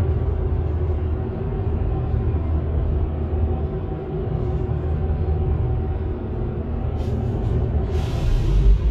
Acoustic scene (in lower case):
bus